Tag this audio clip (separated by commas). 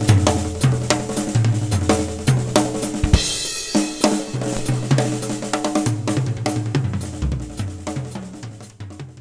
Hi-hat, Cymbal